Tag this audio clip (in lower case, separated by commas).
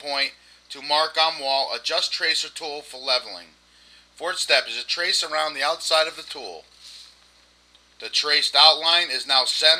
speech